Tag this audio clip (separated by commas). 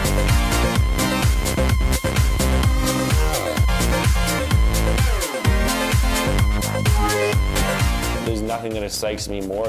Music, Speech